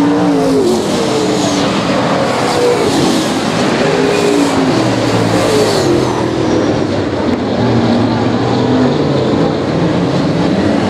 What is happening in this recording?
Race car motors are running and passing by